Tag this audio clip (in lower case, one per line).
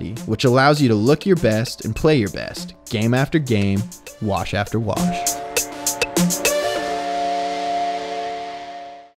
music
speech